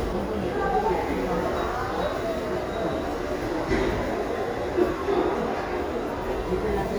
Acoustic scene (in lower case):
crowded indoor space